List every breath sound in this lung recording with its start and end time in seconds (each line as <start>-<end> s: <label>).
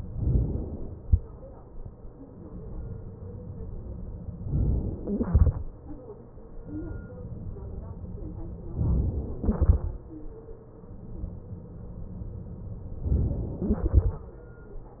0.17-1.01 s: inhalation
4.47-5.24 s: inhalation
5.24-6.82 s: exhalation
8.79-9.43 s: inhalation
9.43-10.98 s: exhalation
12.98-13.68 s: inhalation
13.68-15.00 s: exhalation